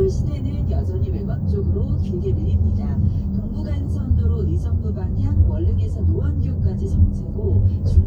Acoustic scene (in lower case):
car